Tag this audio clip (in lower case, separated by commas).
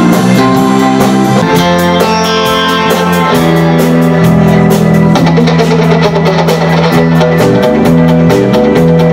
music